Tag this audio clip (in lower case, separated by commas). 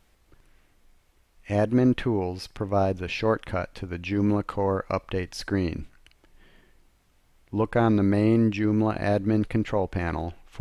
speech